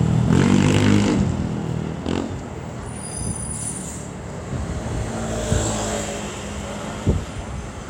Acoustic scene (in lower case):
street